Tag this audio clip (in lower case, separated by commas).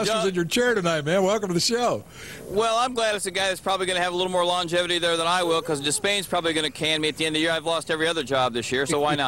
speech